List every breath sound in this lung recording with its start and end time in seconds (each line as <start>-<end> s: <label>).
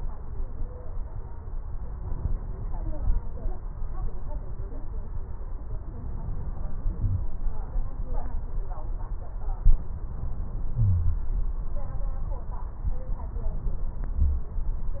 10.79-11.15 s: wheeze